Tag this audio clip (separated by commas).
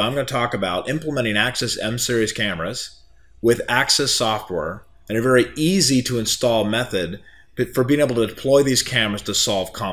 Speech